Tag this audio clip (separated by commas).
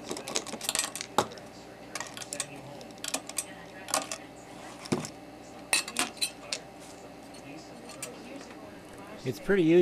Speech